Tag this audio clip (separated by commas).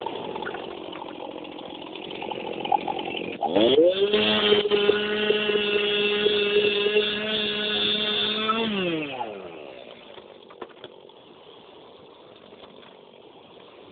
Accelerating, Sawing, Engine, Idling, Tools